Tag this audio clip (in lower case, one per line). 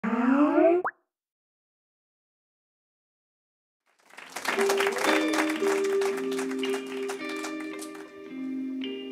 musical instrument
music